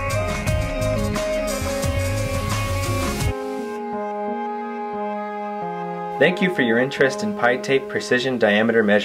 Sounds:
Music, Speech

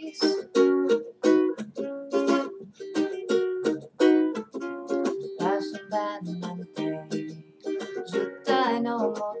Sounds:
Jazz, Music

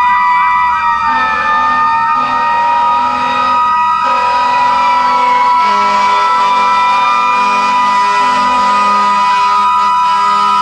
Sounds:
Fire engine, Vehicle

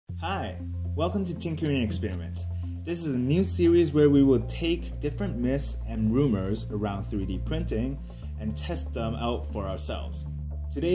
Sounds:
Speech, Music

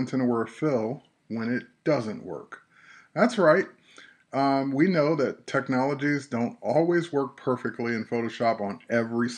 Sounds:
Speech

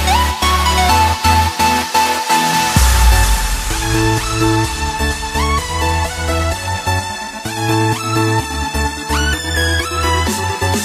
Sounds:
Music

